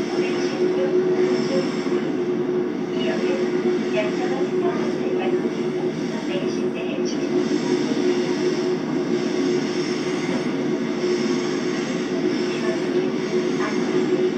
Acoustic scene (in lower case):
subway train